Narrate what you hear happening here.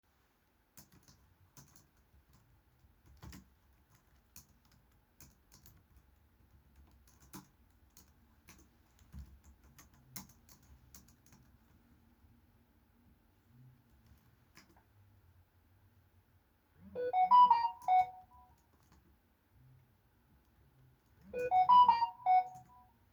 I was typing on my laptop when a notification came.